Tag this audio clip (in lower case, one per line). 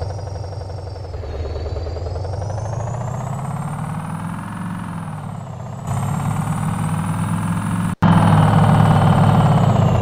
truck
vehicle